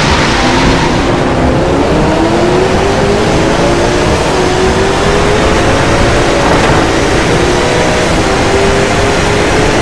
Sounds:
raindrop

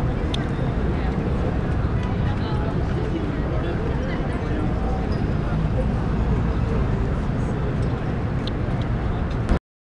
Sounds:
tick, speech

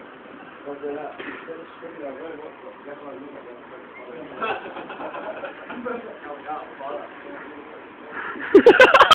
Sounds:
speech

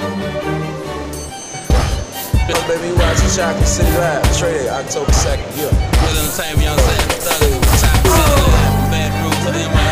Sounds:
speech, music

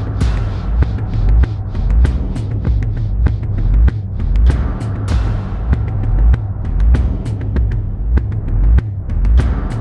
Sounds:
music, soundtrack music

